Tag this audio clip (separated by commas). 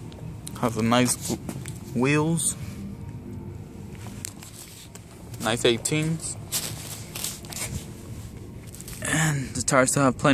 Speech